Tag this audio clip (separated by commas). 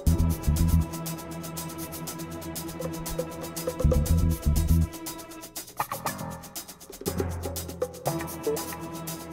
Music